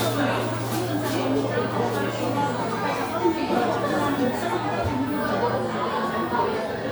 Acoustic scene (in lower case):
crowded indoor space